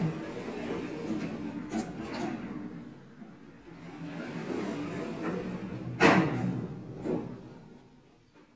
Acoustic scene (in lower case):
elevator